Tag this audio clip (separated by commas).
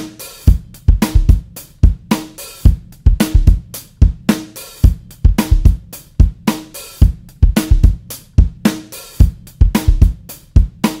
Drum, Snare drum, Percussion, Drum kit, Rimshot, Bass drum